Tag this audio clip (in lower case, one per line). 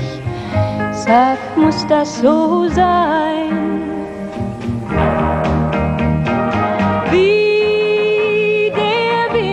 music